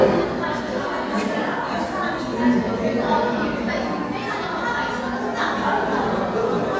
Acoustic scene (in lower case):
crowded indoor space